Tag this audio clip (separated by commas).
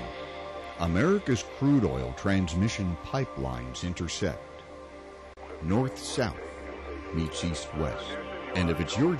Music, Speech